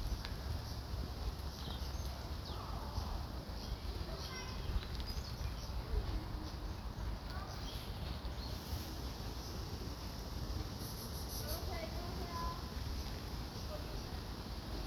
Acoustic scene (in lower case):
park